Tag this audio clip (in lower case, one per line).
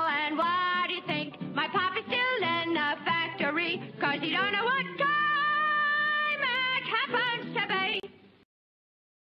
music